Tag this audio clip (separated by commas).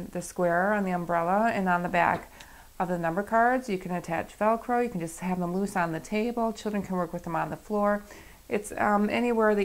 Speech